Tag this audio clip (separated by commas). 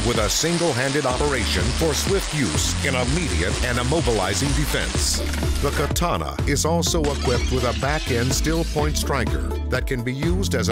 Music, Speech